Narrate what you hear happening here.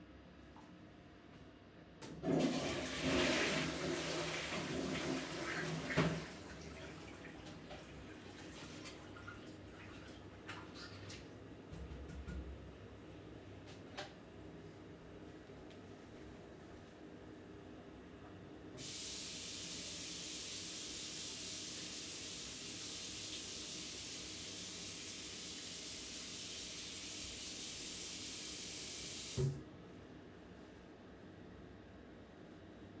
flushing the toilet and washing hands. Ambient background noise from fan